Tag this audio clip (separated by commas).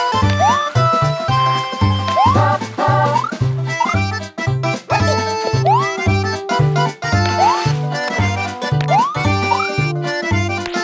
Music